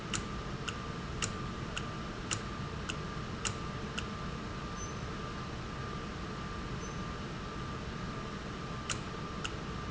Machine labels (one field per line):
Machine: valve